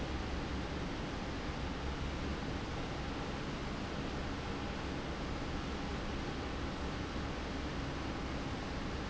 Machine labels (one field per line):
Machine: fan